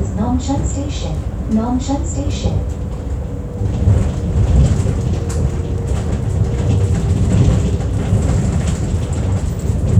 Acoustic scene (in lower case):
bus